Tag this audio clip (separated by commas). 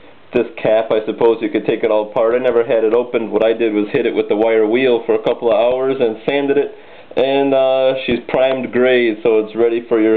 Speech